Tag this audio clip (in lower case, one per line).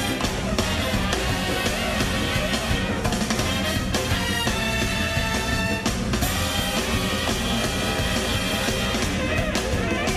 music